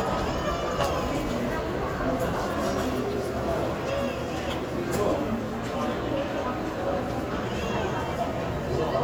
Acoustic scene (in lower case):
crowded indoor space